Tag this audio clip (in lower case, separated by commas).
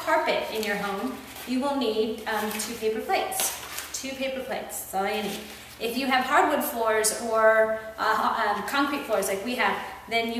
speech, inside a large room or hall